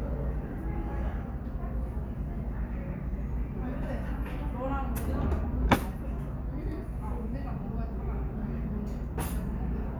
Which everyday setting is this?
restaurant